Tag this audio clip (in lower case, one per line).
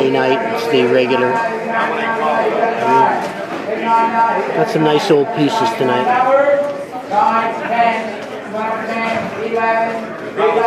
speech